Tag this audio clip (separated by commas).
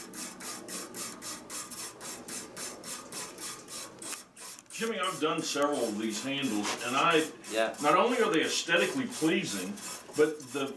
Speech